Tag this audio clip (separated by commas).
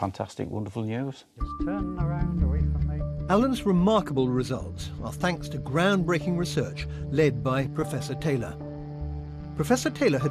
reversing beeps